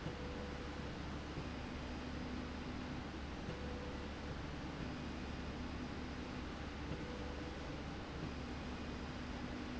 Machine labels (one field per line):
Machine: slide rail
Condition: normal